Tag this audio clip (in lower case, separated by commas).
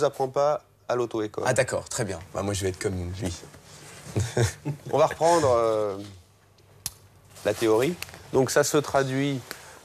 speech